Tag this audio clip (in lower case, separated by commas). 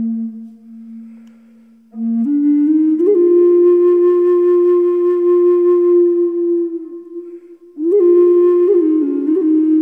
flute, music, new-age music